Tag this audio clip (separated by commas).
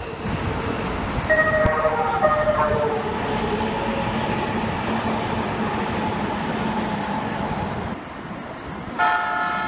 car horn